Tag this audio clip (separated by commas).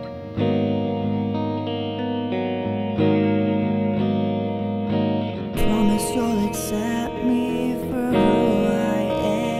Singing, Music